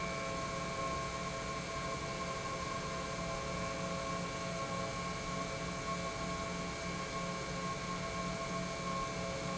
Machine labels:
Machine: pump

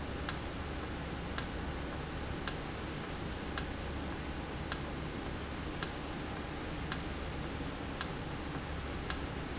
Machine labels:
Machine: valve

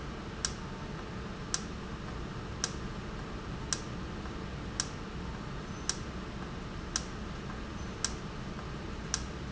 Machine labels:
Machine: valve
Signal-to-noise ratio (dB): -6 dB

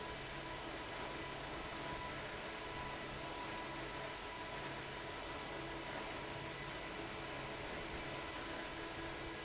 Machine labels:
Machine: fan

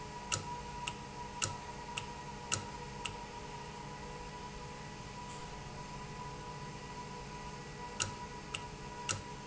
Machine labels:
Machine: valve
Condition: normal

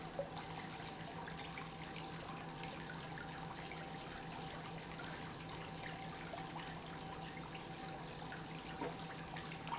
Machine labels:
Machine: pump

